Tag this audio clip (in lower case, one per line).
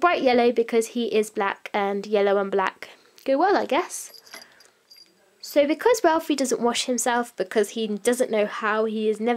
speech
inside a small room